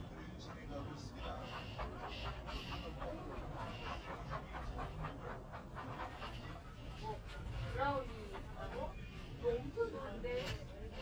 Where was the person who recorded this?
in a crowded indoor space